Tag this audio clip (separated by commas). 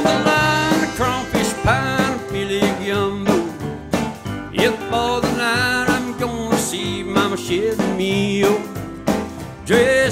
Acoustic guitar, Plucked string instrument, Guitar, Music, Strum, Musical instrument